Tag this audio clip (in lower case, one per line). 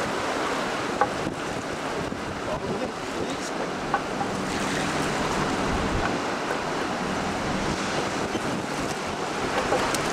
wind
wind noise (microphone)
waves
ocean
motorboat
water vehicle